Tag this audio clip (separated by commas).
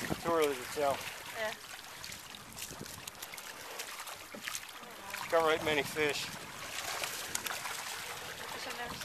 Speech